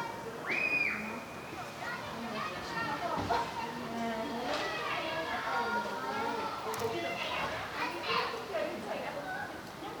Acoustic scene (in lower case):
park